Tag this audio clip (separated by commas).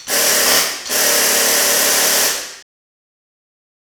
Mechanisms